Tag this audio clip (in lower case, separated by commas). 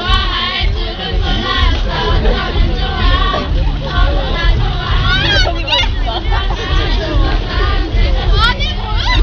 music